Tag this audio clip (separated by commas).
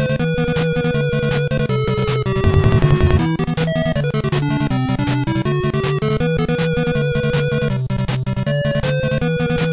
Music